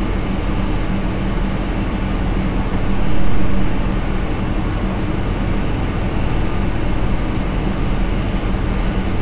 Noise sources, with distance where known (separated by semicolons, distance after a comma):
large-sounding engine